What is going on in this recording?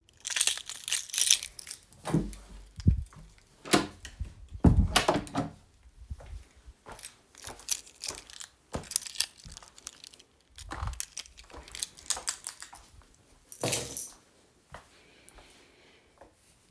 I walked through the hallway while holding a keychain. Then I opened and closed the door.